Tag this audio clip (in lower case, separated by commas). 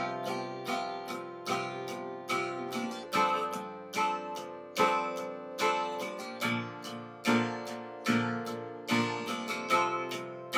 music, acoustic guitar, plucked string instrument, guitar, playing acoustic guitar, musical instrument